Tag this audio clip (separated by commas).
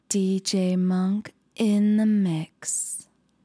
Human voice, Speech, Female speech